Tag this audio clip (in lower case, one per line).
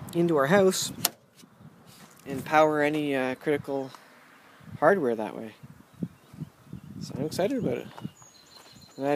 speech